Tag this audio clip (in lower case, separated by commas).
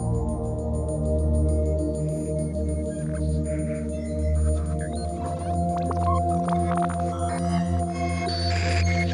speech, music